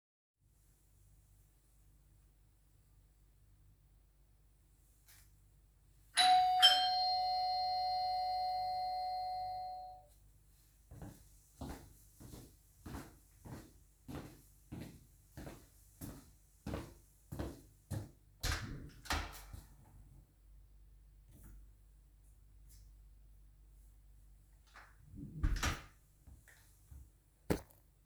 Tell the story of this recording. bell ringing,walking to the door,opening the door,closing the door